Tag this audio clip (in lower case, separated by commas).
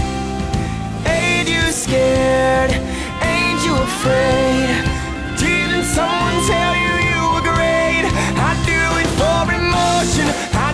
music